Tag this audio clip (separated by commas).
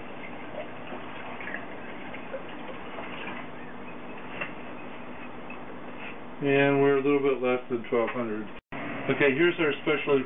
Speech, Water